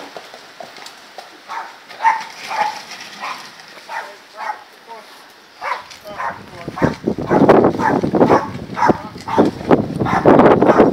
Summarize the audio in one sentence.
A horse is walking, a dog is barking, the wind is blowing, and adult males speak in the background